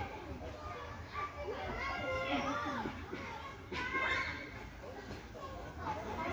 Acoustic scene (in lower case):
park